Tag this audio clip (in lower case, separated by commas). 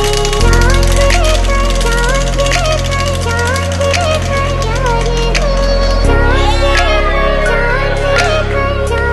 speech, music